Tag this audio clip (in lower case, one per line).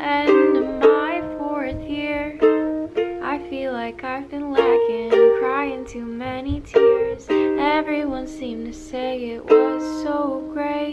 playing ukulele